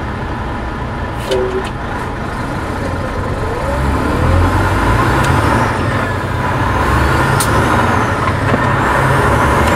A truck engine is revving up and a person speaks